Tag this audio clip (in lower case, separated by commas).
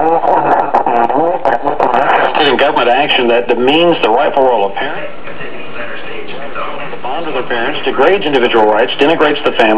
radio, speech